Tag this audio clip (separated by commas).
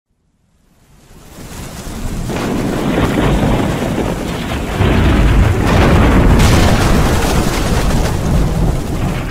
Eruption